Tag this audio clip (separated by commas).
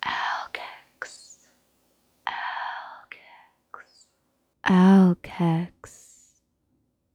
Human voice, Whispering